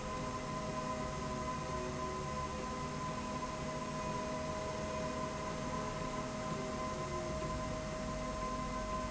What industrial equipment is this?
slide rail